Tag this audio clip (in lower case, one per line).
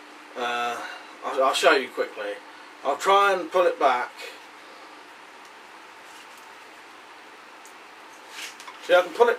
speech